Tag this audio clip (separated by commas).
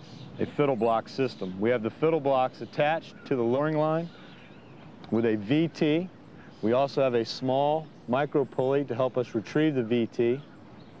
Speech